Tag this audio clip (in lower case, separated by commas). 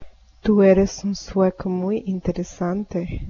human voice